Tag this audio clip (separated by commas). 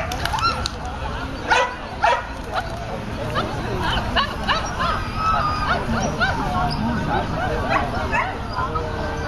Yip, Speech